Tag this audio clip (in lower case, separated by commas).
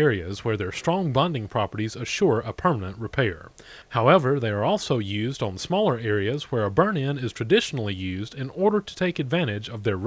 speech